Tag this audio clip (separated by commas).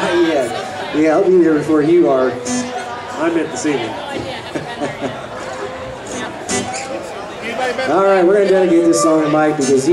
Speech, Music